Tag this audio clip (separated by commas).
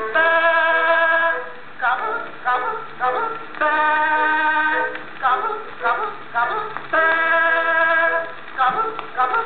Synthetic singing, Music